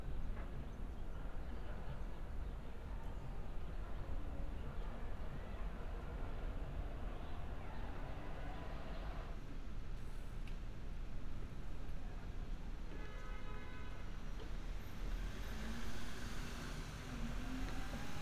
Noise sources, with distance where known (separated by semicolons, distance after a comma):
medium-sounding engine; car horn, far